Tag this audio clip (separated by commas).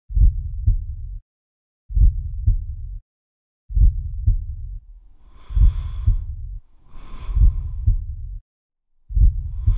Breathing